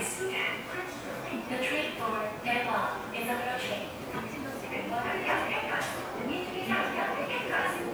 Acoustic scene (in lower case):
subway station